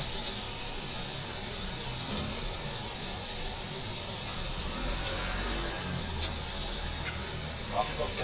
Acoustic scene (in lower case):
restaurant